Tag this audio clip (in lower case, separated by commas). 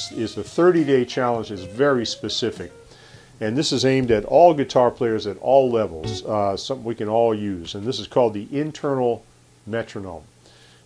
speech